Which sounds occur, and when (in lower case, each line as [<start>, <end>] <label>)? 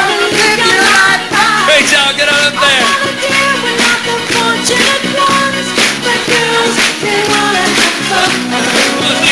[0.00, 1.65] male singing
[0.00, 1.71] female singing
[0.00, 9.31] music
[0.38, 0.46] clapping
[0.88, 1.08] clapping
[1.65, 3.14] man speaking
[2.56, 5.81] female singing
[3.77, 3.96] clapping
[4.31, 4.47] clapping
[5.29, 5.43] clapping
[6.03, 6.76] female singing
[6.28, 6.40] clapping
[7.04, 8.41] female singing
[7.24, 7.37] clapping